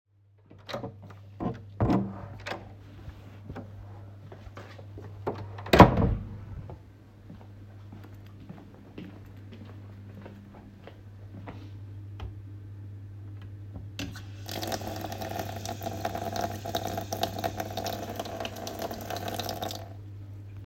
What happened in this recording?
I entered a room through the door and walked towards the tap and turned it on.